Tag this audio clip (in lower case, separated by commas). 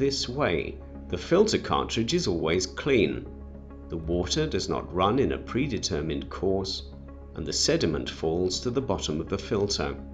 speech